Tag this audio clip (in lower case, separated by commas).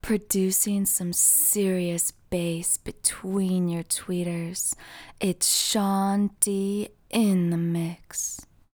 human voice, female speech, speech